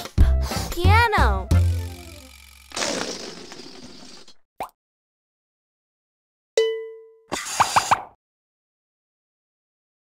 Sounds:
Speech, Music, Child speech

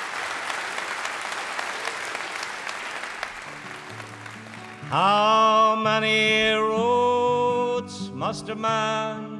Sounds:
Music

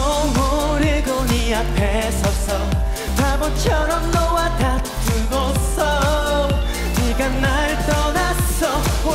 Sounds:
Music, Dance music

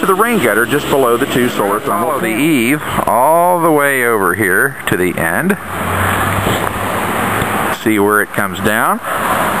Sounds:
Speech

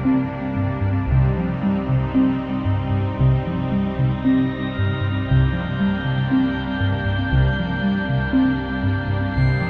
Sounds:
Music, Ambient music

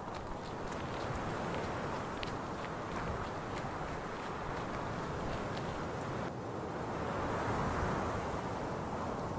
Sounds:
outside, rural or natural, Run

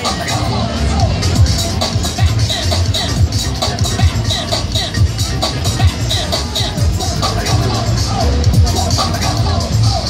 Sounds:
Music

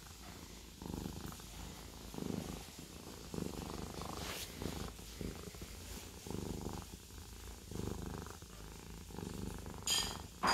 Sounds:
cat purring

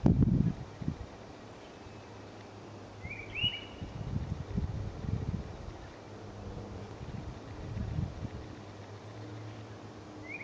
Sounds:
outside, rural or natural, Animal

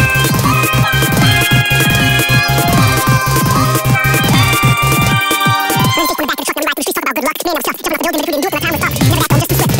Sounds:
Pop music, Music, Video game music

